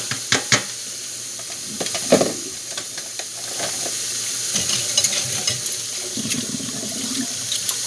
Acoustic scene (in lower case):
kitchen